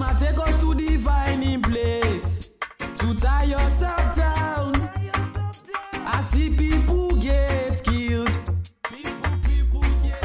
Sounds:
music
funk

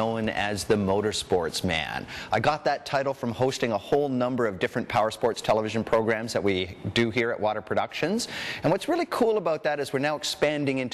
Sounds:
speech

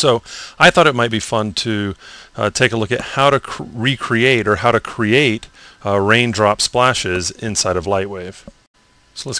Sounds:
speech

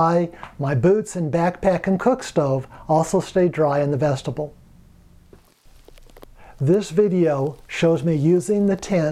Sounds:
speech

